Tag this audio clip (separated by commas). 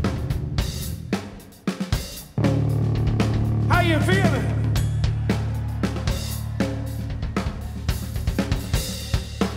Blues, Music, Speech